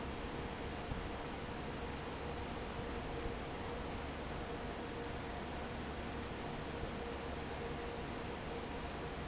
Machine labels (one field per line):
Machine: fan